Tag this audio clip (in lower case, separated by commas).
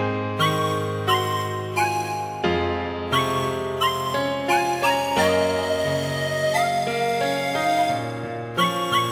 music, sad music